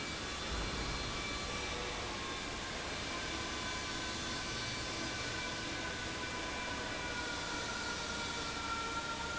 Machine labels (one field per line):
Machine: fan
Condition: abnormal